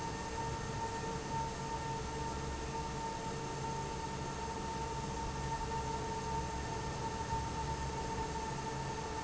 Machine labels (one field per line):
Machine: fan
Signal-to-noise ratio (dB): -6 dB